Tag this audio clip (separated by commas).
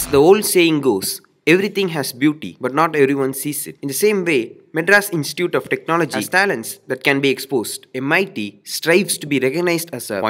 Speech